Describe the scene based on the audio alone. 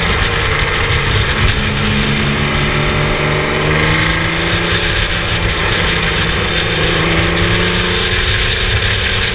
A mechanical, grinding sound as a car engine passes